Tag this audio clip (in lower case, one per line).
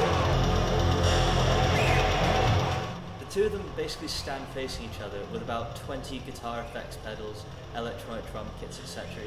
music
speech